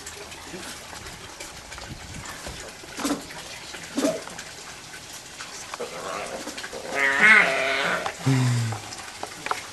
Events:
[0.00, 9.72] mechanisms
[0.00, 9.72] water
[6.69, 8.11] growling
[8.15, 8.83] human voice
[8.82, 9.61] generic impact sounds

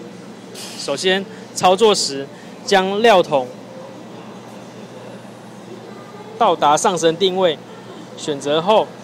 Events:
[0.00, 9.03] mechanisms
[0.52, 1.01] hiss
[0.76, 1.21] man speaking
[1.22, 1.45] breathing
[1.54, 2.24] man speaking
[2.32, 2.63] breathing
[2.65, 3.52] man speaking
[5.67, 6.40] speech
[6.40, 7.56] man speaking
[7.56, 8.13] speech
[8.15, 8.86] man speaking

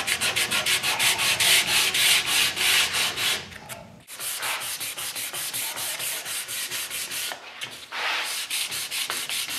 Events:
[7.91, 8.44] generic impact sounds
[7.91, 9.55] sanding

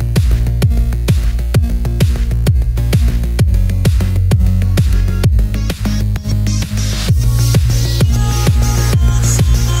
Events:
[0.00, 9.80] music
[7.99, 9.80] female singing

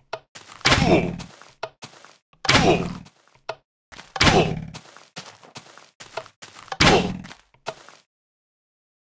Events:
[0.00, 2.19] video game sound
[0.12, 0.20] tap
[0.33, 0.65] footsteps
[0.63, 1.14] thud
[0.75, 1.23] groan
[1.17, 1.56] footsteps
[1.57, 1.73] tap
[1.80, 2.21] footsteps
[2.23, 2.33] thud
[2.30, 3.62] video game sound
[2.43, 3.10] thud
[2.56, 3.06] groan
[2.79, 3.41] footsteps
[3.47, 3.65] tap
[3.88, 8.07] video game sound
[3.88, 4.23] footsteps
[4.12, 4.69] thud
[4.28, 4.74] groan
[4.72, 6.78] footsteps
[6.10, 6.28] tap
[6.68, 6.79] tap
[6.79, 7.13] groan
[6.79, 7.26] thud
[7.15, 7.49] footsteps
[7.66, 7.74] tap
[7.68, 8.07] footsteps

